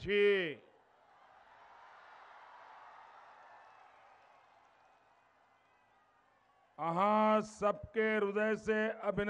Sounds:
man speaking, narration, speech

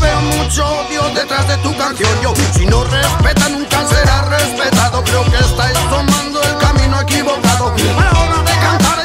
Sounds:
music

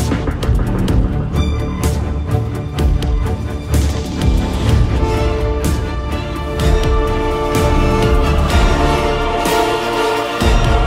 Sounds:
exciting music, music

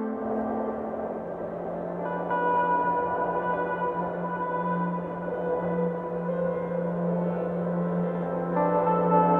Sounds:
music

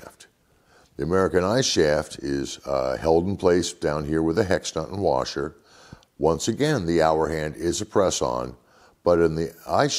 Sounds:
speech

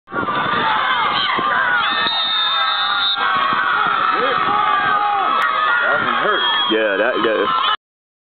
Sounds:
speech, run

